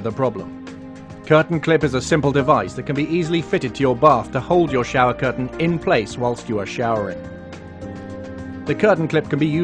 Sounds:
Music, Speech

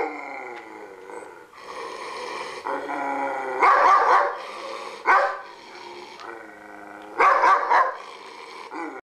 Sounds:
Yip

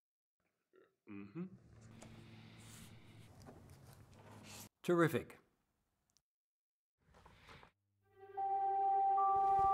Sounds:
Music, Speech, inside a small room

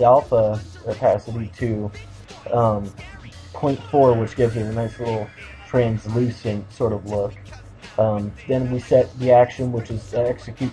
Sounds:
Music, Speech

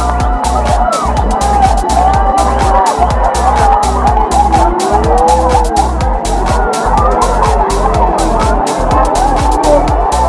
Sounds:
Crowd, Cheering

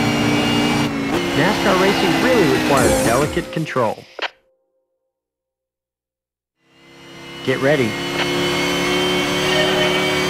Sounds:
Speech, Race car, Silence, Vehicle, Car

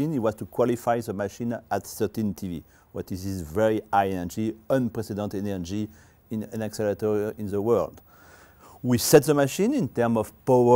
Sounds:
Speech

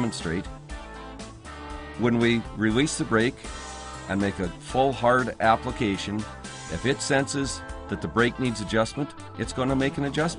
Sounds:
Music, Speech

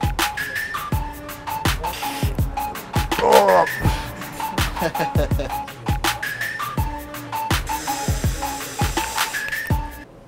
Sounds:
people coughing

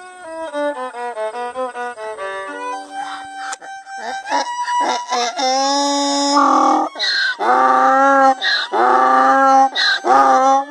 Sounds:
donkey

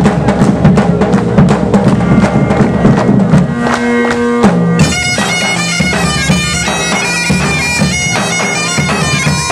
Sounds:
Bagpipes, Wind instrument, playing bagpipes

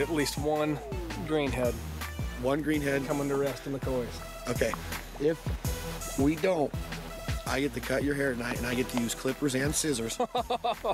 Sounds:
Speech, Music

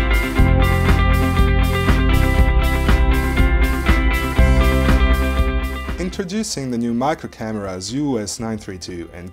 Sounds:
Music, Speech

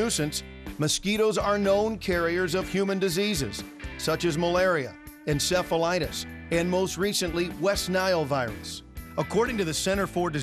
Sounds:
Music, Speech

